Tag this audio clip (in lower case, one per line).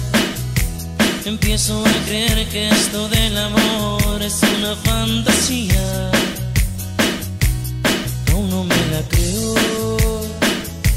rock and roll
music